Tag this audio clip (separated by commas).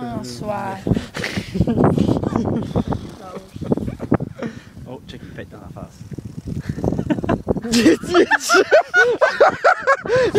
Speech